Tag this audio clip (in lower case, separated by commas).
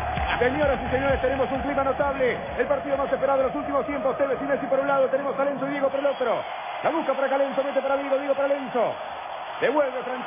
playing volleyball